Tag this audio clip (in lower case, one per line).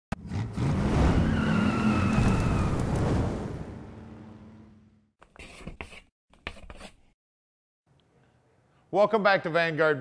speech
tire squeal
vehicle
car